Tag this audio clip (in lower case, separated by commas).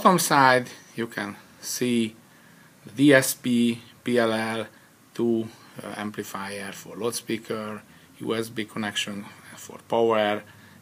speech